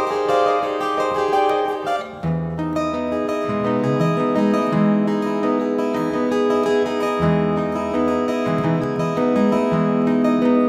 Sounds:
music

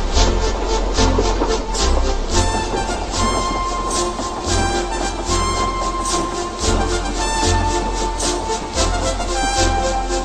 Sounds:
music

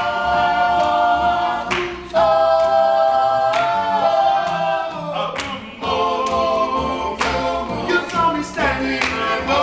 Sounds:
music, male singing

